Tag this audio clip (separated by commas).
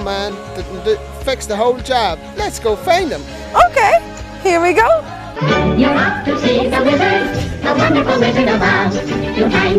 Speech, Music